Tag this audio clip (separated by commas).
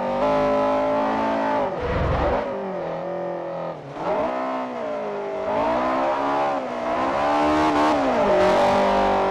Car passing by, Vehicle, Motor vehicle (road), Car